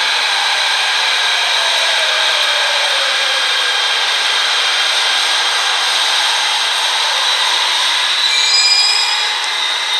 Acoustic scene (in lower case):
subway station